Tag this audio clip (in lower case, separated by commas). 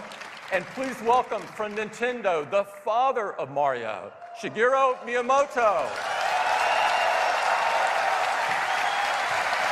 speech